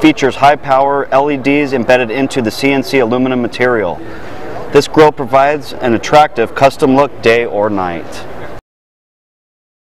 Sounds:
speech

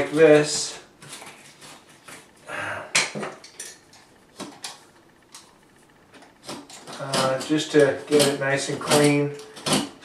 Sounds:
speech

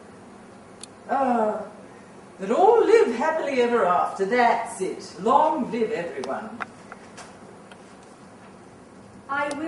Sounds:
inside a large room or hall
speech

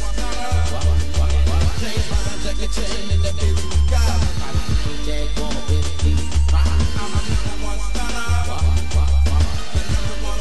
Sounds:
music

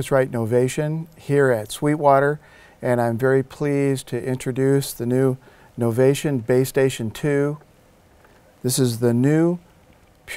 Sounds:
speech

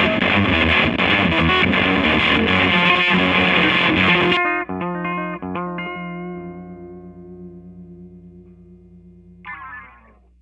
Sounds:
effects unit
plucked string instrument
music
musical instrument
distortion
guitar

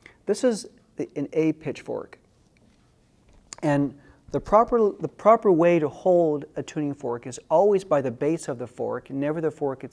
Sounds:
speech

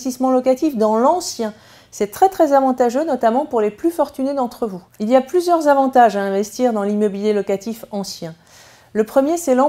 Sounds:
speech

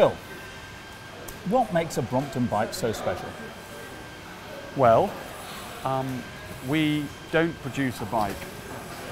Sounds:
speech

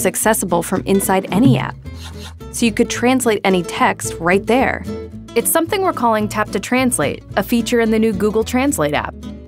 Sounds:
speech
music

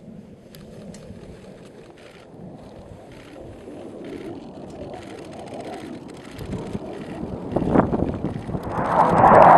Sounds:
vehicle
aircraft

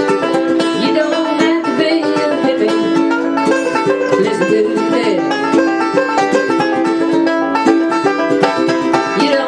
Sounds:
music
banjo
ukulele

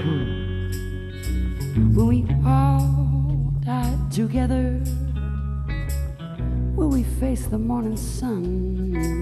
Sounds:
music

